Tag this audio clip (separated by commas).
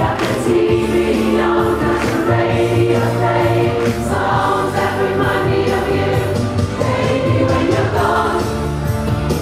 Choir, Progressive rock, Rock and roll, Music